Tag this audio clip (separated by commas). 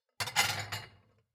Domestic sounds, silverware, dishes, pots and pans